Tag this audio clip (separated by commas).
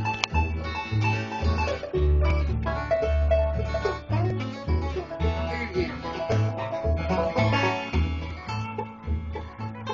Middle Eastern music, Music